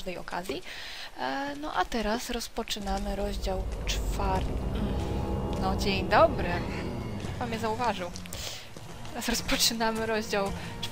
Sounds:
speech, music

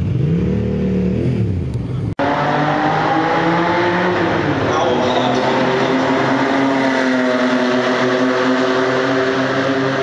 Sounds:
speech

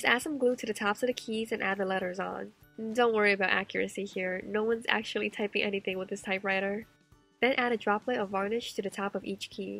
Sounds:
typing on typewriter

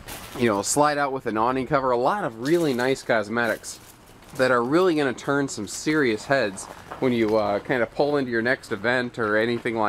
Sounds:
speech

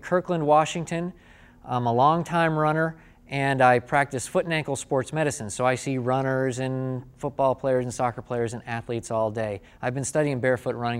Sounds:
speech, inside a large room or hall

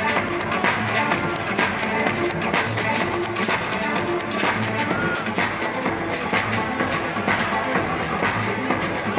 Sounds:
music

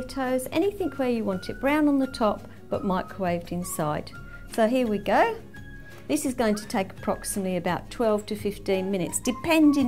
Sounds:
music, speech

